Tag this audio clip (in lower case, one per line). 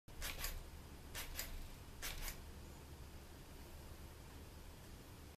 inside a small room